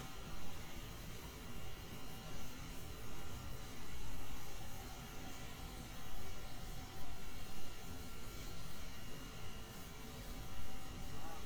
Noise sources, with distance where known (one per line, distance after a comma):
background noise